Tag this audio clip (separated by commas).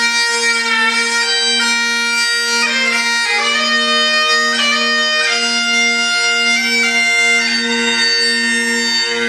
Music, Bagpipes, playing bagpipes